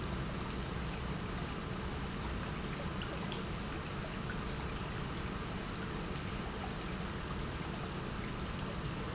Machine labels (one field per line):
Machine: pump